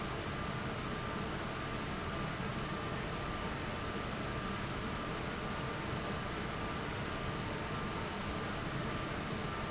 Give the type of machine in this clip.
fan